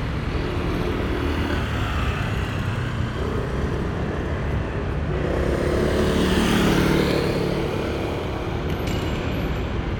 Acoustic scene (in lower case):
residential area